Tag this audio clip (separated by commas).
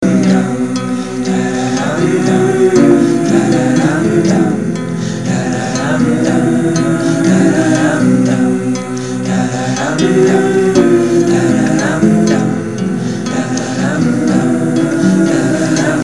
Music, Guitar, Musical instrument, Plucked string instrument, Acoustic guitar